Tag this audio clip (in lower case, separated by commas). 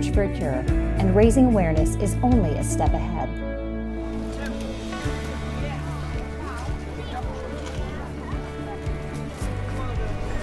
footsteps, music, speech